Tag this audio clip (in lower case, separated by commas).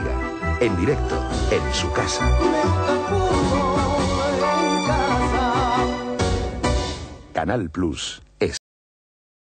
speech, music